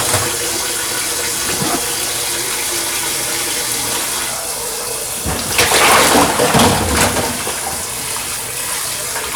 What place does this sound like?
kitchen